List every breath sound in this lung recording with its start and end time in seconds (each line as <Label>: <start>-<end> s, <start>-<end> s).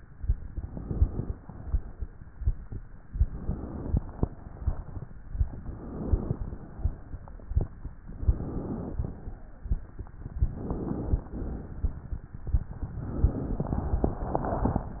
Inhalation: 0.00-1.34 s, 3.04-4.20 s, 5.35-6.37 s, 7.97-8.95 s, 10.27-11.25 s, 13.10-14.08 s
Exhalation: 1.42-2.26 s, 4.18-5.11 s, 6.39-7.37 s, 8.95-9.93 s, 11.26-12.23 s, 14.08-15.00 s